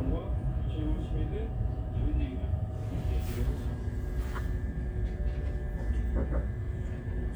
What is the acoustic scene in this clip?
crowded indoor space